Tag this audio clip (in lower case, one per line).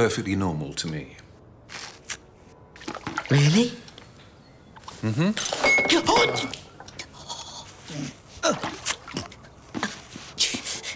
speech